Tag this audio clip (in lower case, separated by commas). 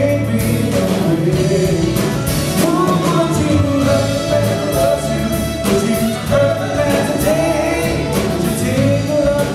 pop music, music